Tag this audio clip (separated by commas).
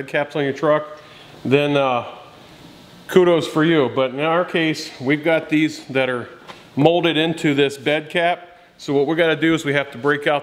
Speech